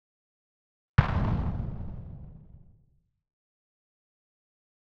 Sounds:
Explosion

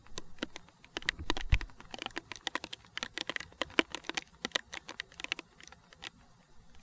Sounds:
Water, Rain

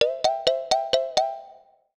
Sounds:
Mallet percussion, Music, Percussion, Musical instrument, xylophone

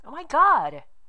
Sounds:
woman speaking, Speech, Human voice

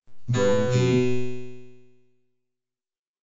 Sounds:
Speech, Speech synthesizer, Human voice

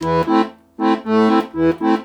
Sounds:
Musical instrument, Music, Accordion

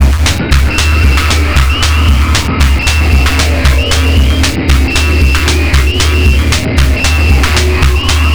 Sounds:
Music, Percussion, Musical instrument, Drum kit

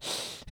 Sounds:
Respiratory sounds, Breathing

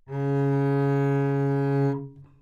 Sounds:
Bowed string instrument, Musical instrument, Music

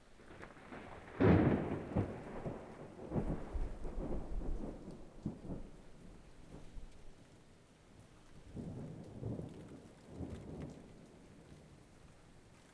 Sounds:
Thunderstorm, Thunder, Rain, Water

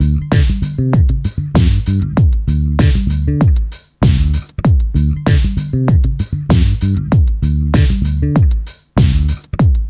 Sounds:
Guitar, Bass guitar, Music, Plucked string instrument, Musical instrument

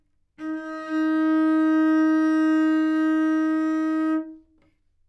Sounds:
Music, Bowed string instrument, Musical instrument

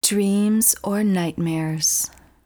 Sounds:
Speech, Human voice, woman speaking

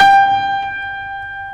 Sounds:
Keyboard (musical), Musical instrument, Music, Piano

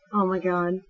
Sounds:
Speech, Human voice, woman speaking

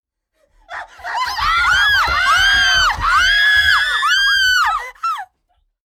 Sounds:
Human voice, Screaming

